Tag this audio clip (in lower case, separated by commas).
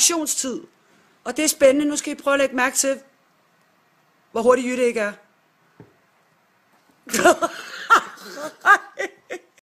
speech